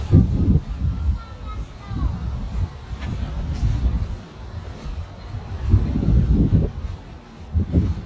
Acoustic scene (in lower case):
residential area